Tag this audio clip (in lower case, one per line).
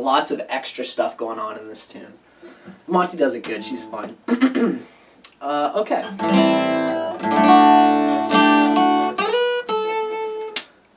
musical instrument
plucked string instrument
guitar
mandolin
acoustic guitar